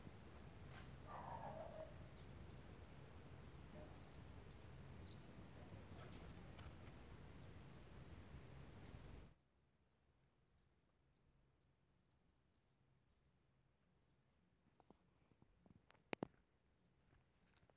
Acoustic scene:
park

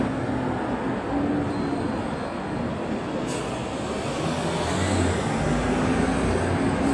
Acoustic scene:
street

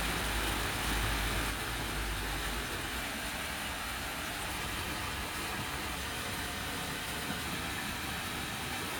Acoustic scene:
park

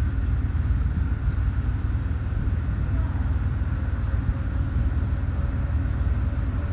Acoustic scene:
residential area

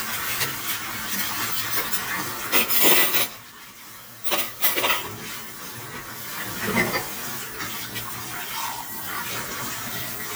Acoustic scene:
kitchen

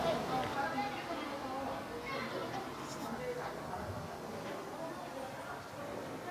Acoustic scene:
park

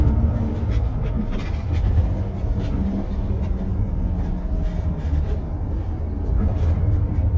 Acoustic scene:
bus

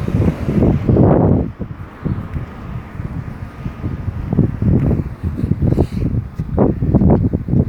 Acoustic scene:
residential area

